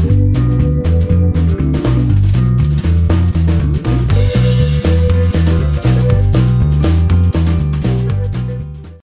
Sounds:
Music

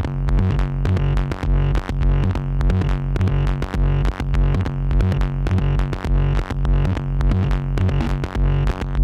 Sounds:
Electronic music

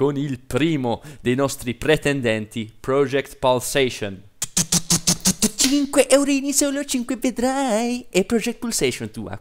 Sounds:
Speech

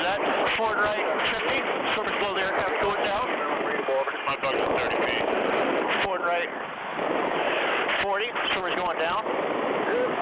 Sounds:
Sailboat, Speech

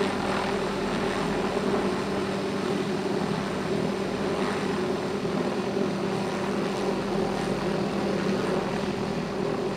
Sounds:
outside, rural or natural

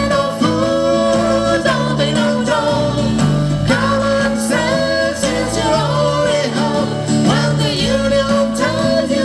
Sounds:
Guitar, Music, Singing

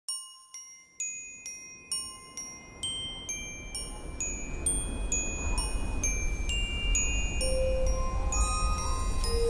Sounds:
Music

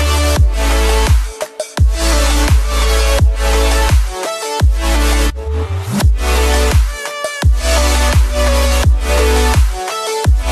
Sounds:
Music

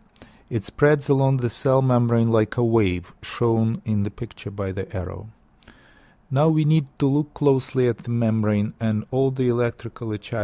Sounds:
Speech

